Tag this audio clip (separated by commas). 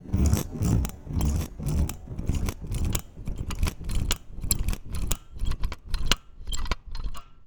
Mechanisms